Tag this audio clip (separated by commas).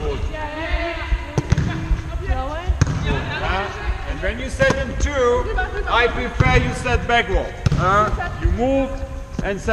playing volleyball